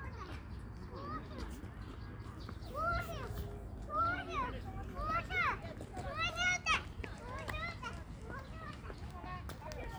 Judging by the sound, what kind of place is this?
park